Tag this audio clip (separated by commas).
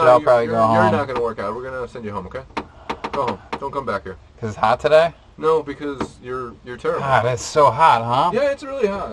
Speech